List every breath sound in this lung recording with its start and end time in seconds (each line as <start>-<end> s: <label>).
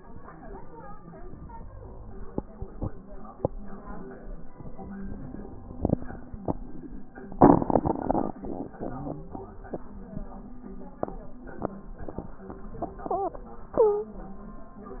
8.77-9.42 s: wheeze
13.75-14.15 s: stridor